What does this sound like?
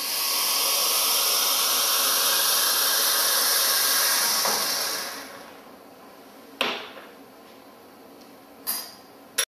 Water from a faucet is running and there is a clanging noise as well